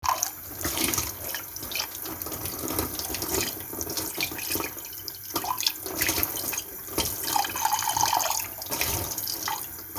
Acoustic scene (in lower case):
kitchen